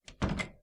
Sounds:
door, slam, domestic sounds

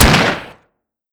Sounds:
gunshot, explosion

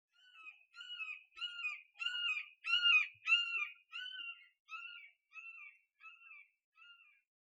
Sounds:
animal, bird, wild animals

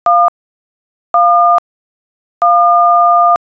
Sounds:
alarm, telephone

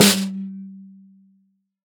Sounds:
music, musical instrument, drum, percussion, snare drum

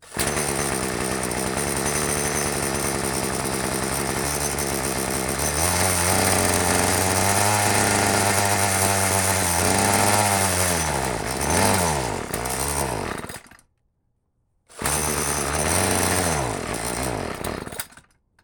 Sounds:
engine starting, engine

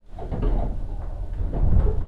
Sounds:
vehicle, metro, rail transport

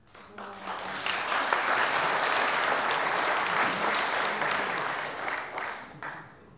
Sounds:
applause, human group actions

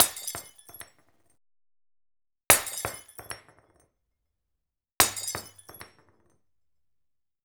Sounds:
glass, shatter

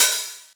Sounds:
cymbal, music, percussion, hi-hat, musical instrument

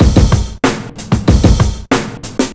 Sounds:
percussion, drum kit, musical instrument, drum, music, snare drum

